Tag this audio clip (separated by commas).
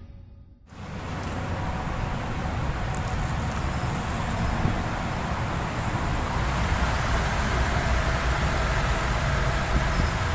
Car, Vehicle, Traffic noise